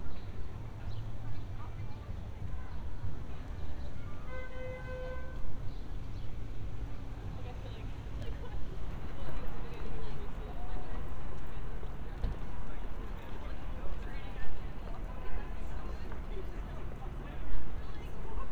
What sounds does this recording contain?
car horn, person or small group talking